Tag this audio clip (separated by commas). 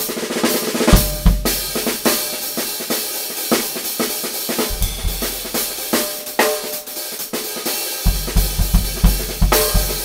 Snare drum, Musical instrument, Drum, Music, Drum kit, Cymbal